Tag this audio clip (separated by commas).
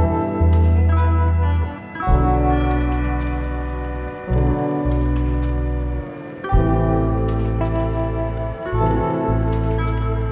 Music